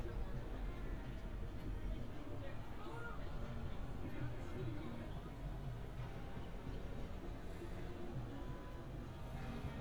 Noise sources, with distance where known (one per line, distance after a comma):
person or small group talking